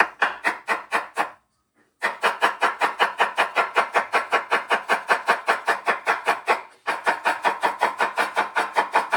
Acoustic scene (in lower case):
kitchen